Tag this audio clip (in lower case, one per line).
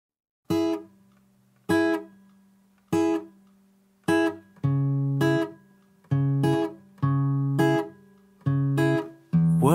acoustic guitar